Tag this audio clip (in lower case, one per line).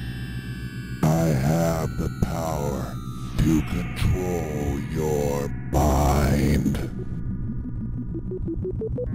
hum